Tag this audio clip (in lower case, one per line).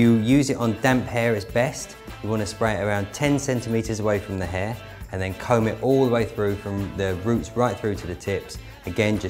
music
speech